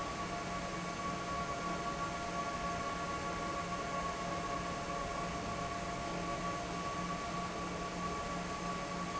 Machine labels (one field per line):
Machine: fan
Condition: normal